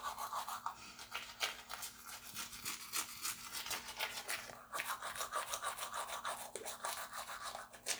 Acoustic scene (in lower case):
restroom